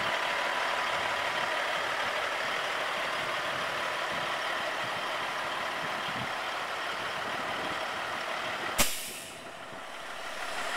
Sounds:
truck
engine
idling

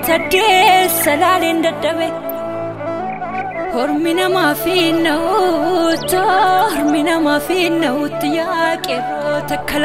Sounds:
music

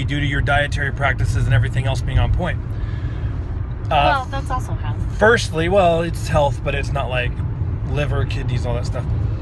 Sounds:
speech
vehicle
car

